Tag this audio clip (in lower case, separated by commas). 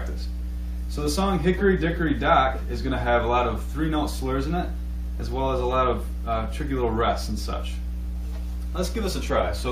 speech